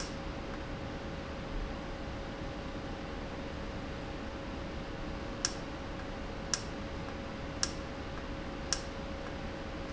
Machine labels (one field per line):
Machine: valve